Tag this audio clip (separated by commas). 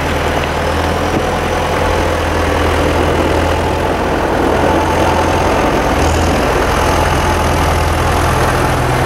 Vehicle, Truck